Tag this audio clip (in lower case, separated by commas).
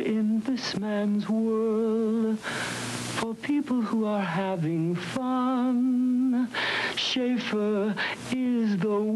music, singing